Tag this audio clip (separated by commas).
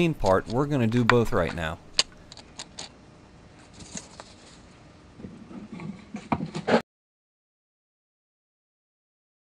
inside a small room, Speech